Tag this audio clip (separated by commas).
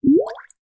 Liquid, Drip, Water, Gurgling